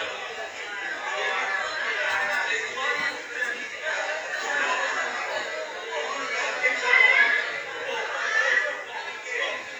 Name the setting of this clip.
crowded indoor space